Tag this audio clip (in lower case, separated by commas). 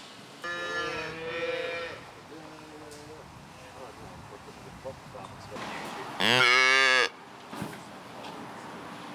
cattle mooing